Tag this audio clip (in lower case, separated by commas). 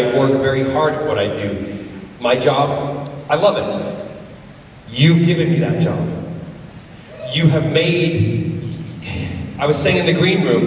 speech